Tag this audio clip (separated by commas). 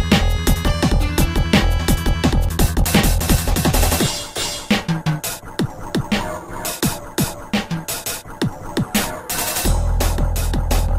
Music